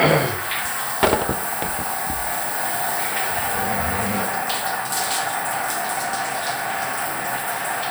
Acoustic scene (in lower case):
restroom